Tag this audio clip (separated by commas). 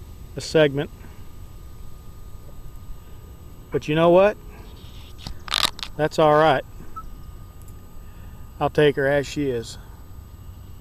Speech